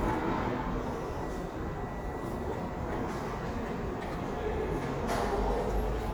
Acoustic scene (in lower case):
subway station